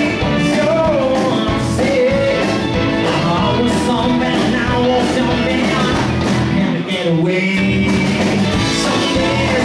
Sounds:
Country, Music

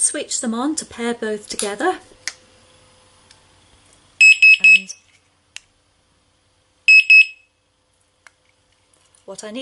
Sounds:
Speech

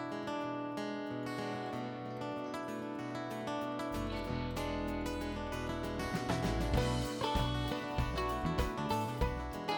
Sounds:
Music, Jazz, Rhythm and blues

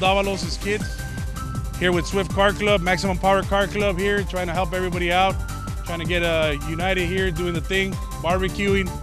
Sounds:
Speech, Music

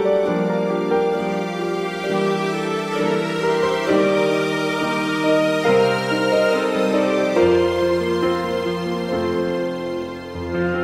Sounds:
Background music, Orchestra, Music

